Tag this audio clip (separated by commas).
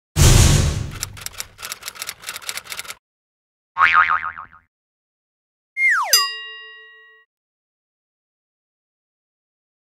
Music, Boing